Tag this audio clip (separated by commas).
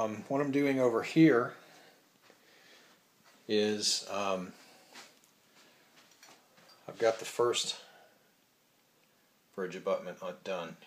inside a small room, Speech